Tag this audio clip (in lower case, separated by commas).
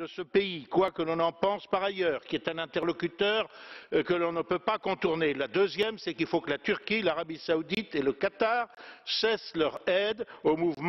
speech